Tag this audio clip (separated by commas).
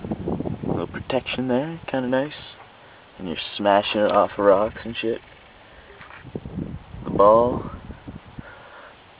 Speech